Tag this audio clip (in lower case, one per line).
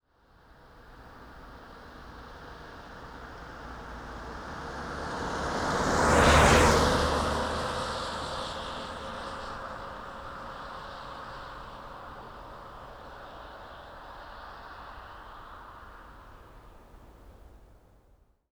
car
motor vehicle (road)
car passing by
vehicle